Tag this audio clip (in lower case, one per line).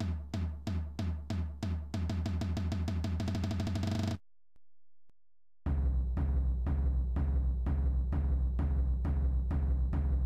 music